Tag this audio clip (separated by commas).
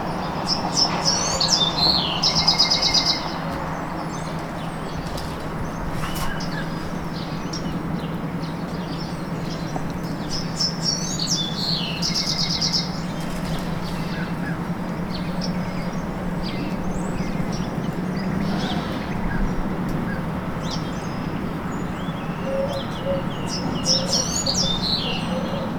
Bird, Animal, Wild animals